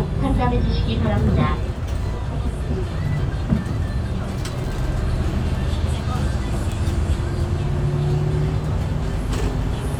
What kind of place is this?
bus